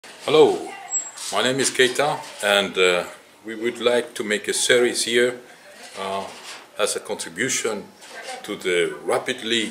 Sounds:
speech

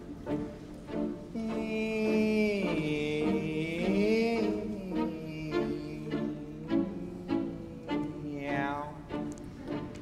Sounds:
music

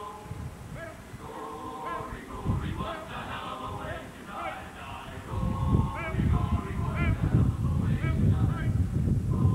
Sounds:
speech

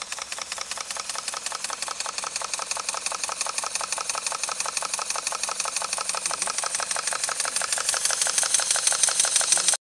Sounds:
heavy engine (low frequency)

